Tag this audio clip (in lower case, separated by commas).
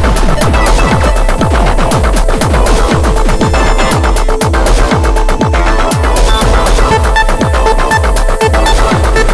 music